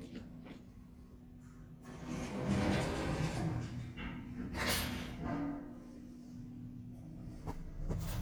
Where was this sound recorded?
in an elevator